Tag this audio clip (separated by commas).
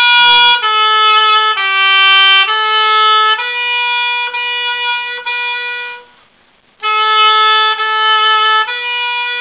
playing oboe